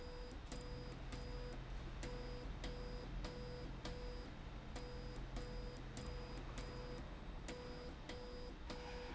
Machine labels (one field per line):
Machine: slide rail